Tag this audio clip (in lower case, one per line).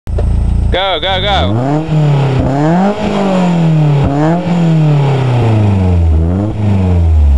revving
speech